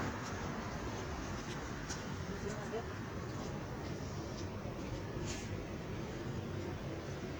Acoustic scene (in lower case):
street